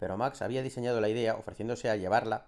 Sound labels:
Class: speech